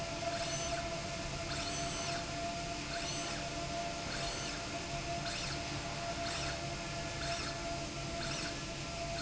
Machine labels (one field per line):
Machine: slide rail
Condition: normal